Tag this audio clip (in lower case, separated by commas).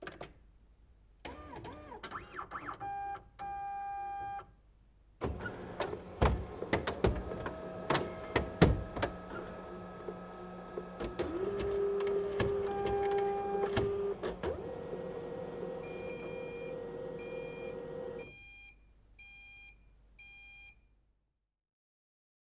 printer, mechanisms